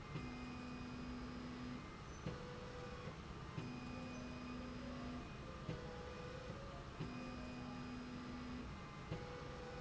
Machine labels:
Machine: slide rail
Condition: normal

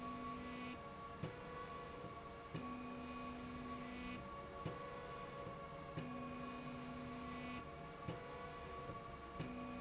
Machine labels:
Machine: slide rail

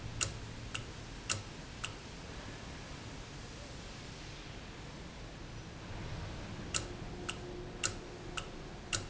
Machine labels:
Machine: valve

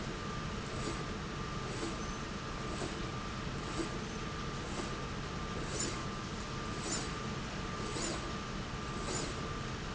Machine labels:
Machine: slide rail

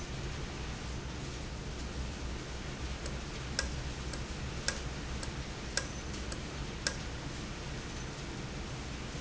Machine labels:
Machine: valve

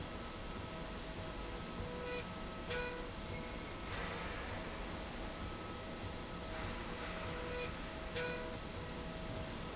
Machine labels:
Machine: slide rail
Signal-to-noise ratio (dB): 0 dB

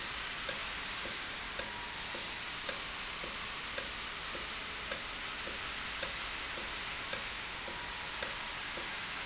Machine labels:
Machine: valve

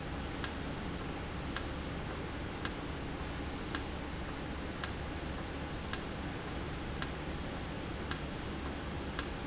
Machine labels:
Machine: valve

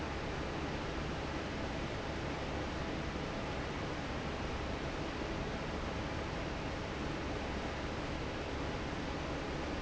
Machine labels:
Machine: fan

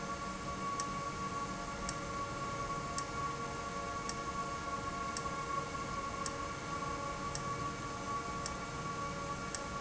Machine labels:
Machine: valve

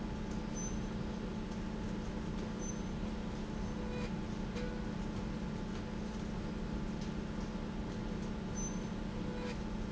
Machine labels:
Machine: slide rail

